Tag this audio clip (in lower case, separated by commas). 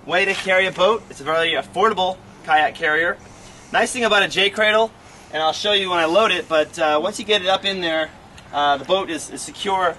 speech